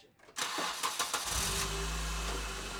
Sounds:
Engine starting, Engine

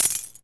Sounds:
Domestic sounds, Coin (dropping)

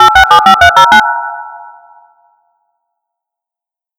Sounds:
Alarm, Telephone

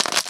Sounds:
Crushing

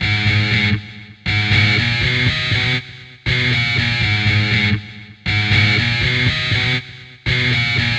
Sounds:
Music, Guitar, Musical instrument, Plucked string instrument

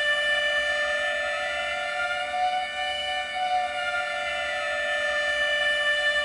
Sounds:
Alarm

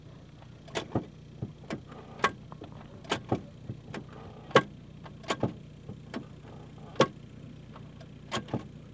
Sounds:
Vehicle, Car, Motor vehicle (road), Mechanisms

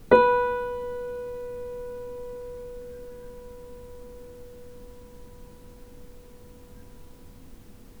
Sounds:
Piano, Keyboard (musical), Musical instrument, Music

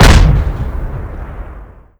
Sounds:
Explosion

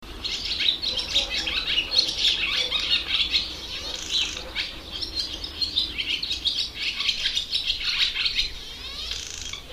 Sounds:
Wild animals, Animal, Bird

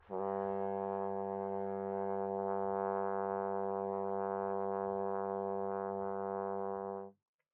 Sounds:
Brass instrument, Music, Musical instrument

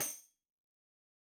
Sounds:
Music, Percussion, Tambourine, Musical instrument

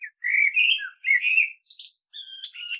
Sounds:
Animal, Bird, Wild animals

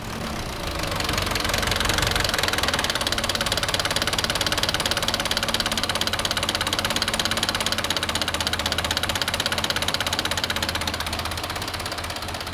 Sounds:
Engine

